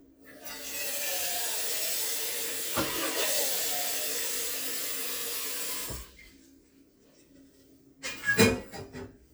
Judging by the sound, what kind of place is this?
kitchen